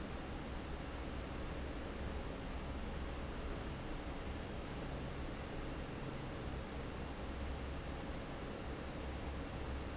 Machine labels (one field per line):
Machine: fan